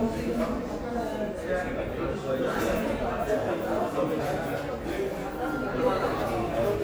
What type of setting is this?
crowded indoor space